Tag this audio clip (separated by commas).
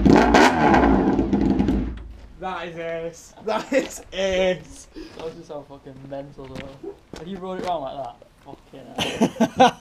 Speech